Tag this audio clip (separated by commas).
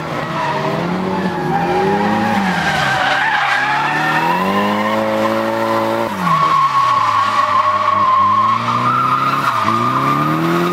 auto racing, Skidding, Vehicle